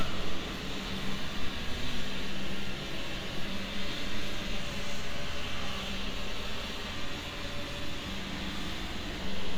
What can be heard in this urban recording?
large-sounding engine